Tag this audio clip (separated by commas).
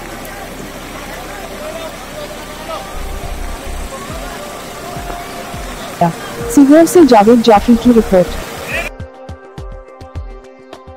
raining